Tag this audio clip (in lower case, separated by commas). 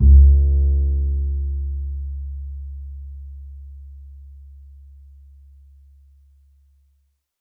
music, bowed string instrument, musical instrument